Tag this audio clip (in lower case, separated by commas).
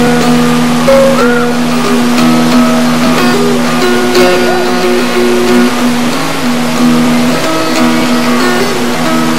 speech, music